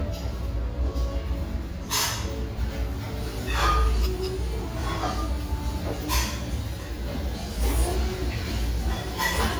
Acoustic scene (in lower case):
restaurant